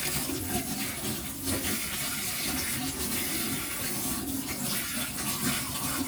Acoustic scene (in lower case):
kitchen